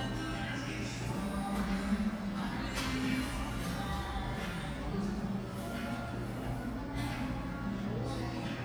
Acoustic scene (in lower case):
cafe